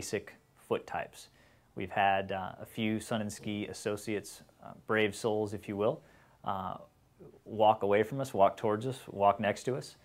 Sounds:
speech, inside a small room

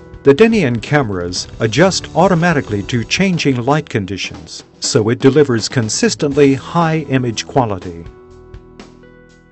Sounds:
music, speech

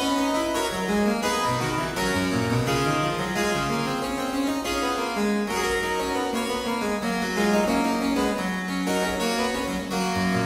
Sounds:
playing harpsichord, harpsichord, music

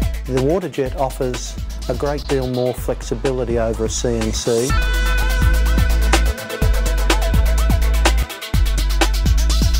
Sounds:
music, speech

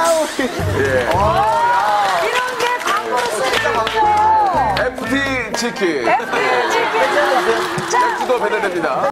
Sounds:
speech, music

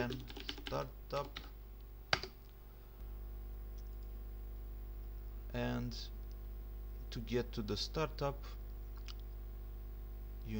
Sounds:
mouse clicking

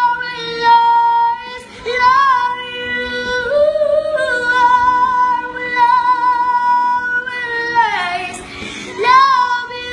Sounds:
singing, music, female singing

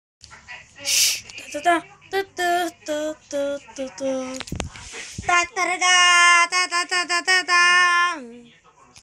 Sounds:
television, speech

